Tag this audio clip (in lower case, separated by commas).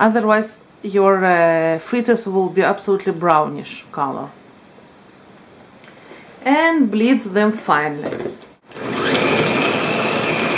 speech, inside a small room